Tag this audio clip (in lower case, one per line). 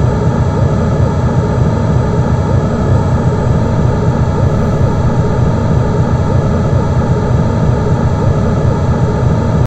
sound effect